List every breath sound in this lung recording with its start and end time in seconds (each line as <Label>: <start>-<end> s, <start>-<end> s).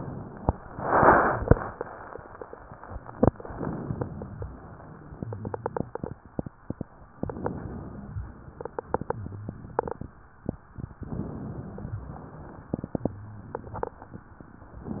Inhalation: 3.41-4.52 s, 7.17-8.17 s, 10.97-11.97 s
Exhalation: 8.19-8.86 s, 11.97-12.75 s
Wheeze: 5.12-5.94 s, 9.12-9.94 s, 13.09-14.28 s